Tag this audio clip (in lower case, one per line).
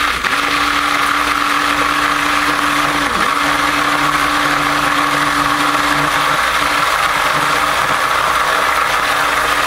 blender